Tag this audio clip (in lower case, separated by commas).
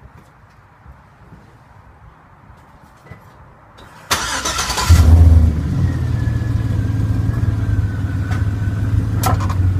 vehicle, car